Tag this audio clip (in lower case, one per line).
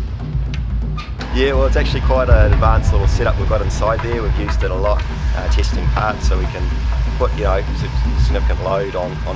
speech
music